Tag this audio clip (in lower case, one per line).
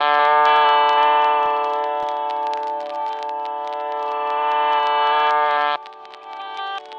musical instrument
guitar
music
plucked string instrument